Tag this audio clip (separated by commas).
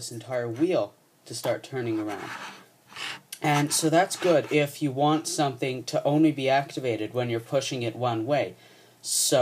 Speech